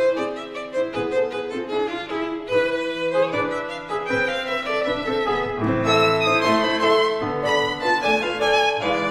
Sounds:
Violin, Musical instrument, Music

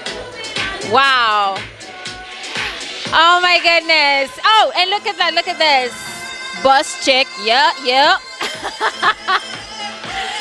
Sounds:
Music, Background music, Soundtrack music, Disco, Speech

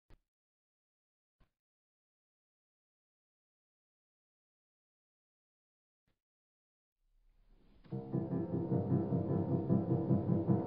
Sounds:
Piano, Musical instrument, Music, Keyboard (musical)

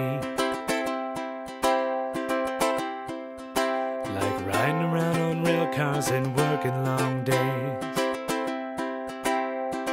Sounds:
Music

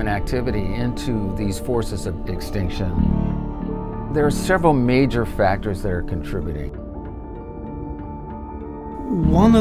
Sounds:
Music, Speech

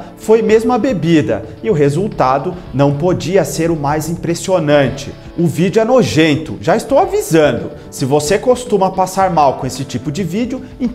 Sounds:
striking pool

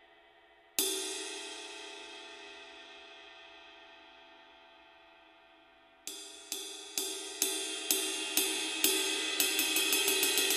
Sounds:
Hi-hat, Cymbal, Music, Musical instrument, playing cymbal

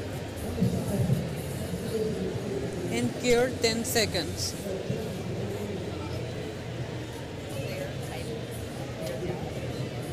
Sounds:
Speech

